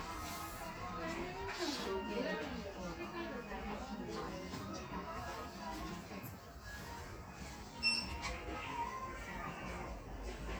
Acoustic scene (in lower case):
crowded indoor space